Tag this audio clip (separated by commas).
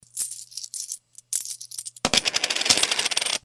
Coin (dropping), home sounds